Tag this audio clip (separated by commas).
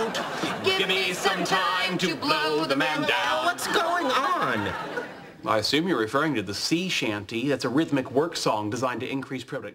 Music, Speech, man speaking